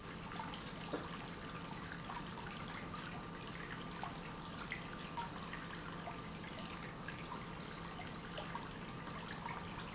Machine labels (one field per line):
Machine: pump